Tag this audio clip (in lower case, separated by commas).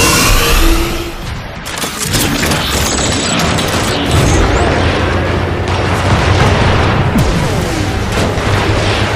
speech, boom